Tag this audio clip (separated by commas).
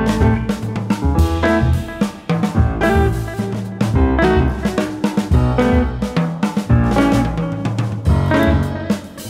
Music, Jazz, Musical instrument